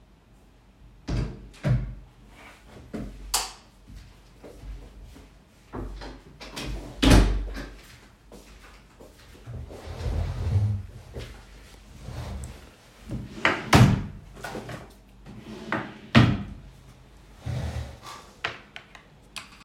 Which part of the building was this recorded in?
bedroom